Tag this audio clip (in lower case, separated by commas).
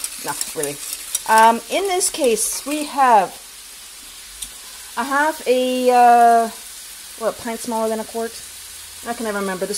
stir